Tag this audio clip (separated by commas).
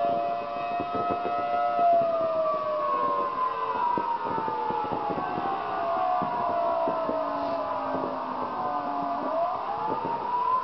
Siren, Civil defense siren